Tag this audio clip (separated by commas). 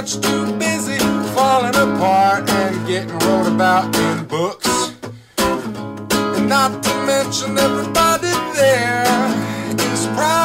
Music